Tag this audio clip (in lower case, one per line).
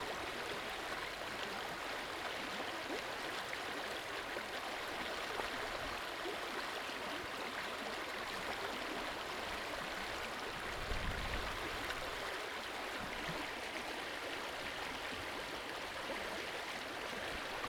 stream
water